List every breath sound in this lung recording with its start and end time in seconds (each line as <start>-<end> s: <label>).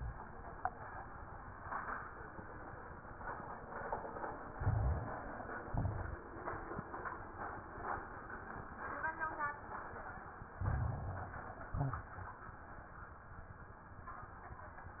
4.48-5.66 s: inhalation
4.48-5.66 s: crackles
5.69-6.21 s: exhalation
5.69-6.21 s: crackles
10.53-11.71 s: inhalation
10.53-11.71 s: crackles
11.74-12.16 s: exhalation
11.74-12.16 s: crackles